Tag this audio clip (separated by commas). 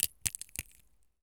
Crack, Crushing